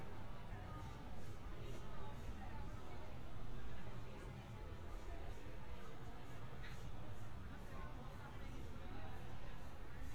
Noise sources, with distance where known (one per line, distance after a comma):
person or small group talking, far